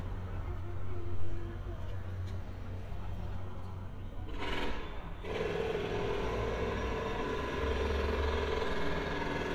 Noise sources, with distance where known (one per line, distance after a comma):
rock drill, near
person or small group talking, near